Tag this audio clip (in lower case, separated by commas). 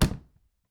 door, slam, home sounds